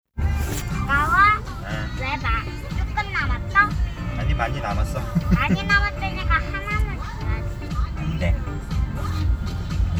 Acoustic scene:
car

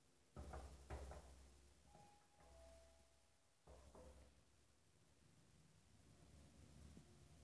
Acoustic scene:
elevator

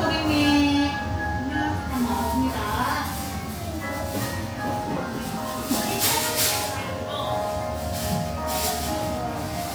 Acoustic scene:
cafe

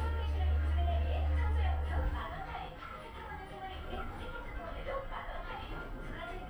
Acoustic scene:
elevator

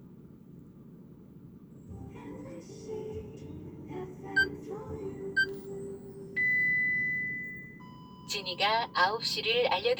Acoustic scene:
car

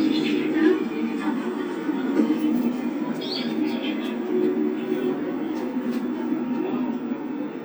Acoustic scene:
park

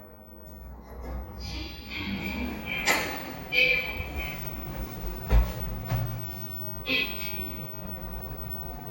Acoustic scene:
elevator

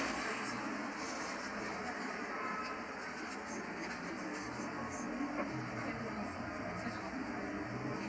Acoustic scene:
bus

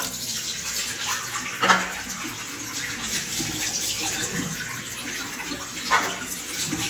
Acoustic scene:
restroom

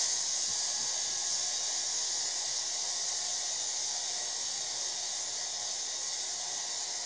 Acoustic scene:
subway train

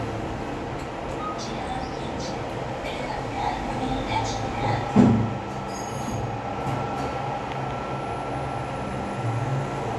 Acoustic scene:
elevator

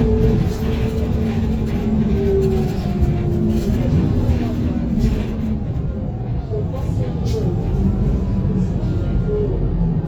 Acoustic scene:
bus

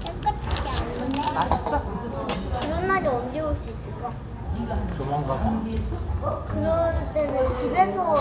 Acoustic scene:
restaurant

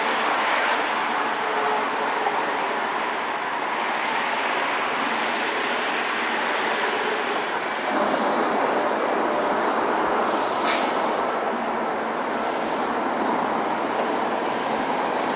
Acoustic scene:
street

